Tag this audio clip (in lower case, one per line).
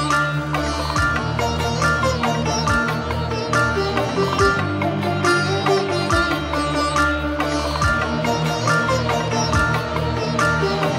dubstep
music